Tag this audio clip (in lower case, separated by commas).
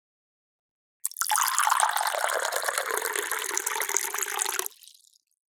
fill (with liquid), liquid